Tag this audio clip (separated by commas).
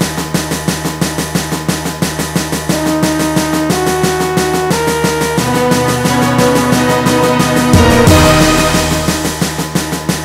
Music, Soundtrack music, Middle Eastern music